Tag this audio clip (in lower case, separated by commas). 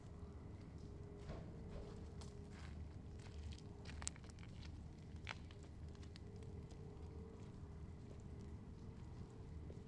footsteps